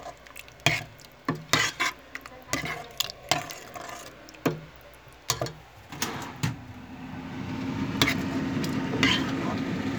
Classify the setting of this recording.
kitchen